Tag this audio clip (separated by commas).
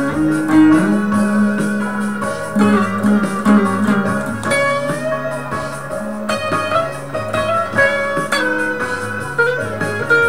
Musical instrument, Guitar, Strum, Music, Electric guitar, Plucked string instrument